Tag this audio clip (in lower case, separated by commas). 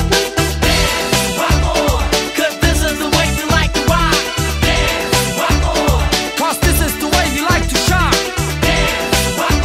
music, exciting music